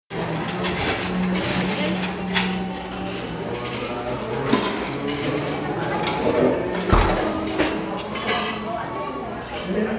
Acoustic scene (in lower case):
crowded indoor space